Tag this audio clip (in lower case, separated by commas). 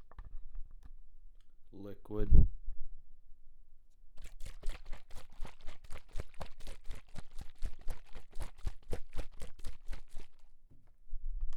liquid